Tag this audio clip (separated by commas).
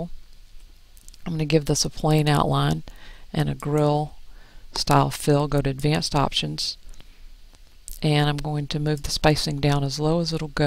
Speech